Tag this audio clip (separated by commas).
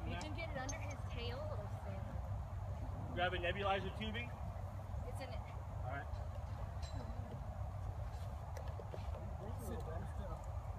Speech